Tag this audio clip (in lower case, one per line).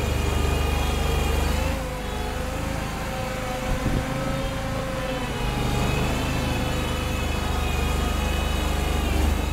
vehicle